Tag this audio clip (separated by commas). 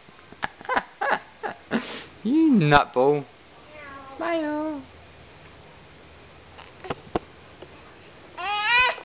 Speech